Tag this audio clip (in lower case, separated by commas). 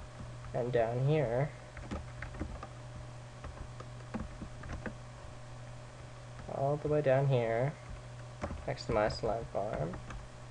speech